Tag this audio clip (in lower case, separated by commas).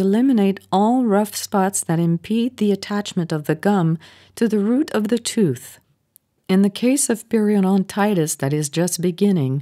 speech